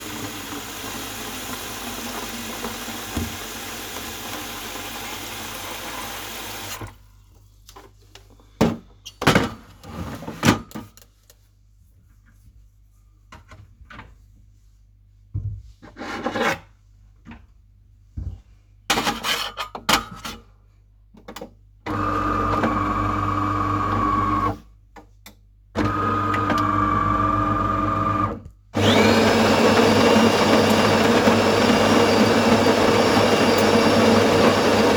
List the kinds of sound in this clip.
running water, coffee machine